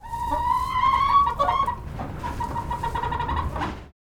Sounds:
Chicken, Fowl, Animal, livestock

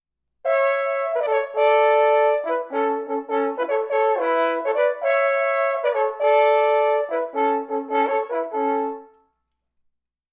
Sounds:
Musical instrument, Music, Brass instrument

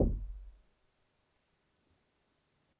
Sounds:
Door, home sounds, Knock

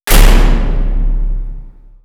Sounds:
Door, Slam, Domestic sounds

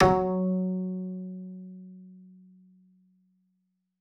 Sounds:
Musical instrument, Music, Bowed string instrument

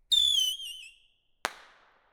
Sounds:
Explosion, Fireworks

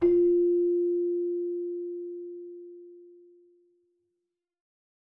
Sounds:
Musical instrument, Music, Keyboard (musical)

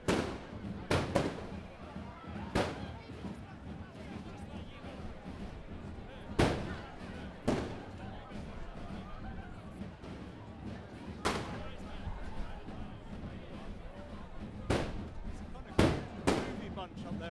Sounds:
Human group actions, Crowd, Explosion, Fireworks

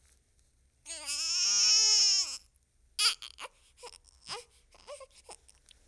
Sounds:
sobbing, Human voice

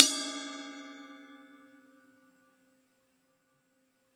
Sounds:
Crash cymbal, Percussion, Music, Cymbal, Musical instrument

